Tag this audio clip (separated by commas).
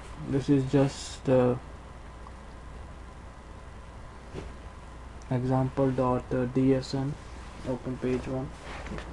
Speech